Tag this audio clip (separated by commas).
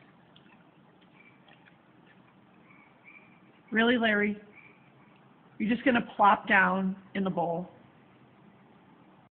Speech